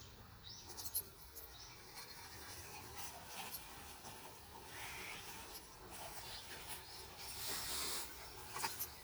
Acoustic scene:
park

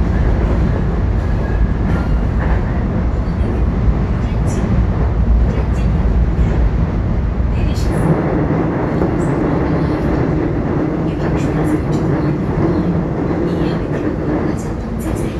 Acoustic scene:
subway train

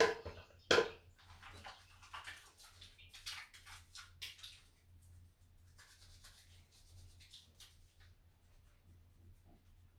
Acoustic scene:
restroom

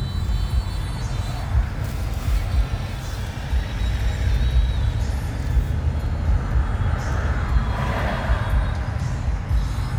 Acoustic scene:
car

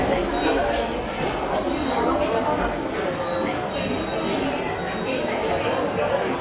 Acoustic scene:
subway station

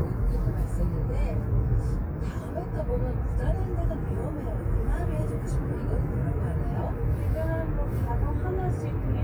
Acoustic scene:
car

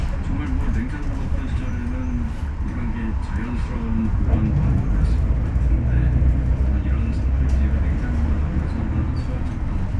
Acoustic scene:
bus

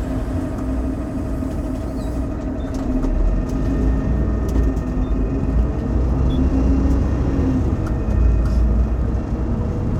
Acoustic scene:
bus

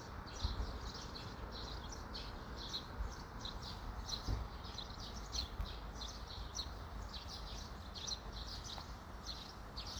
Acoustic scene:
park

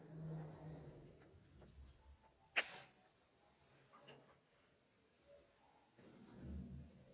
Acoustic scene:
elevator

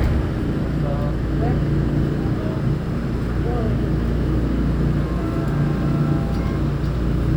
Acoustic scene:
subway train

